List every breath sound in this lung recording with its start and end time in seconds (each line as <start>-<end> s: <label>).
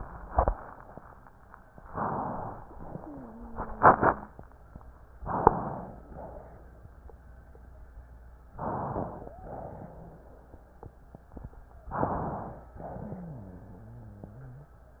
1.90-2.66 s: inhalation
2.70-3.53 s: exhalation
2.90-4.33 s: wheeze
5.26-6.11 s: inhalation
6.11-6.81 s: exhalation
8.55-9.35 s: inhalation
9.06-9.34 s: wheeze
9.38-10.30 s: exhalation
9.42-10.22 s: rhonchi
11.89-12.76 s: inhalation
12.82-14.78 s: exhalation
12.82-14.78 s: wheeze